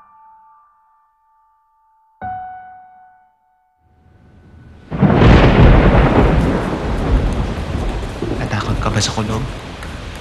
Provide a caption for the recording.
Piano followed by thunder and speech